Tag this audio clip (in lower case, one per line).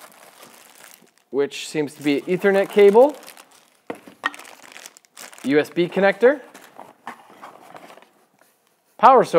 speech